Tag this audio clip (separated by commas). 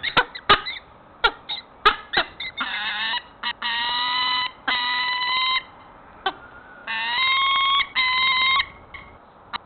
Bird